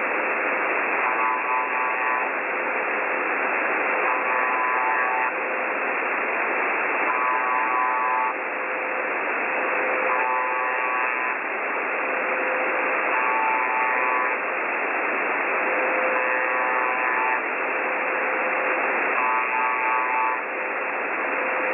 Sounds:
Alarm

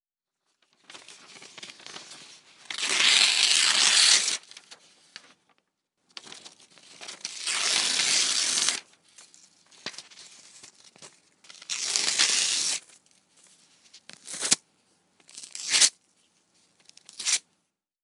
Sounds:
Tearing

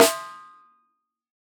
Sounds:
Percussion, Music, Drum, Snare drum, Musical instrument

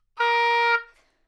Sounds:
Music, Musical instrument, woodwind instrument

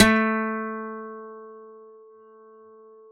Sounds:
Acoustic guitar, Plucked string instrument, Music, Musical instrument, Guitar

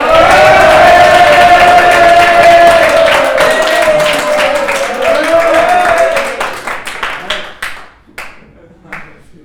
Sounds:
Cheering, Human group actions

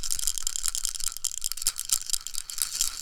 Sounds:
Rattle (instrument), Rattle, Percussion, Musical instrument, Music

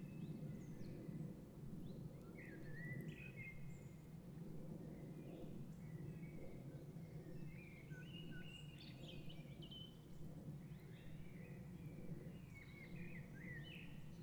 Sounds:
tweet, Wild animals, Bird, bird call, Animal

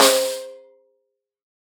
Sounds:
Music, Snare drum, Percussion, Drum, Musical instrument

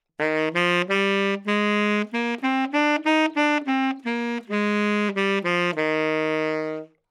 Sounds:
Musical instrument, Music, woodwind instrument

